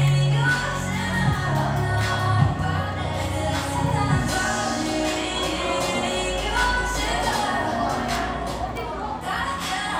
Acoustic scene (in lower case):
cafe